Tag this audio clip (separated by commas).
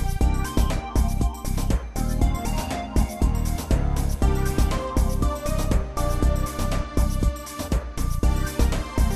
Music